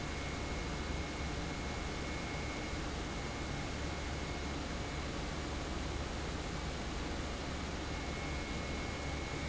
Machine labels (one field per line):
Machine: pump